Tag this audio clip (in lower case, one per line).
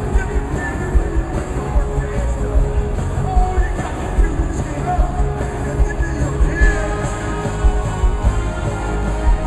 music
rock and roll